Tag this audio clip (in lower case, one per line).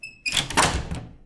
wood
squeak
domestic sounds
door
slam